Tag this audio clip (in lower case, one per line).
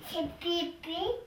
speech
human voice
kid speaking